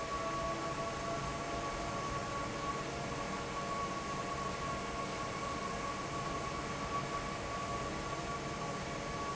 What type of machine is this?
fan